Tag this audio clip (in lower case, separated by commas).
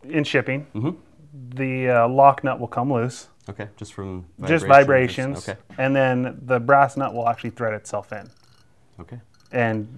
speech